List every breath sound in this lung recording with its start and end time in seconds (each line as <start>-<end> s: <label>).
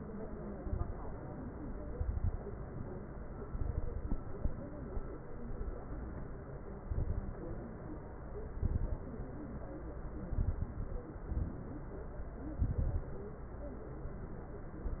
0.51-1.10 s: inhalation
0.51-1.10 s: crackles
1.90-2.39 s: inhalation
1.90-2.39 s: crackles
3.48-4.18 s: inhalation
3.48-4.18 s: crackles
6.84-7.41 s: inhalation
6.84-7.41 s: crackles
8.49-9.06 s: inhalation
8.49-9.06 s: crackles
10.24-11.06 s: inhalation
10.24-11.06 s: crackles
11.25-11.91 s: exhalation
11.25-11.91 s: crackles
12.60-13.15 s: inhalation
12.60-13.15 s: crackles